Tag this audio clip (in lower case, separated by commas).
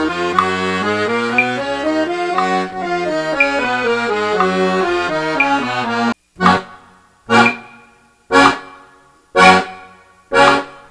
playing accordion